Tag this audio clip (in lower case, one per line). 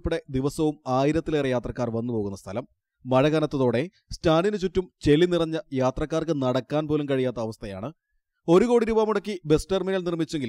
speech